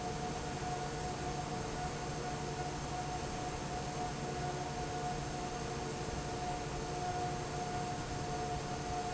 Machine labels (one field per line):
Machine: fan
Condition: normal